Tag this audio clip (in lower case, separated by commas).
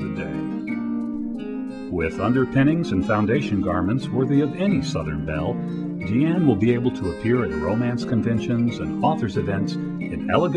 speech, music